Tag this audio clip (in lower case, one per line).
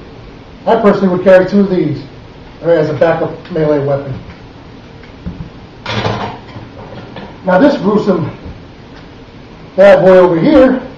inside a small room
speech